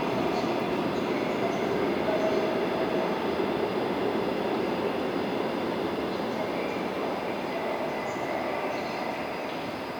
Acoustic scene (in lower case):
subway station